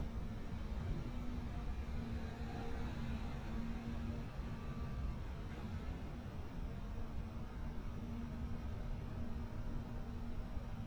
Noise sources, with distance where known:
small-sounding engine, far

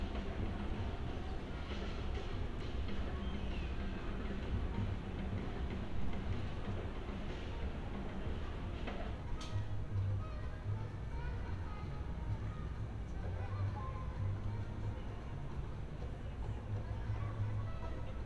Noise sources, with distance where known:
music from a fixed source, far

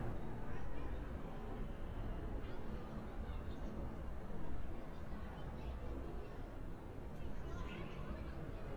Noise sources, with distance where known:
person or small group talking, far

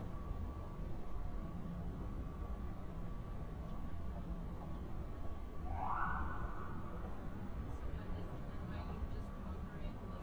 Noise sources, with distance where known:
unidentified alert signal

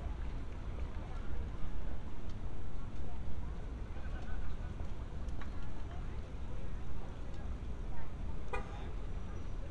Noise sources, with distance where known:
unidentified human voice, far

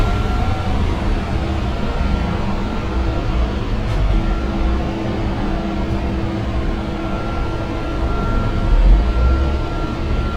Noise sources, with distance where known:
unidentified alert signal

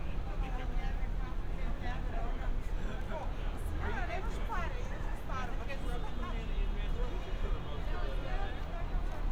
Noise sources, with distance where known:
person or small group talking, near

